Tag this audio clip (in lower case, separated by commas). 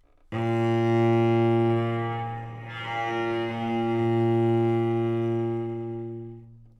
music, musical instrument, bowed string instrument